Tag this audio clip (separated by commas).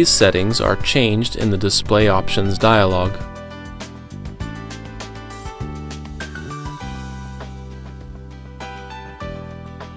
Speech, Music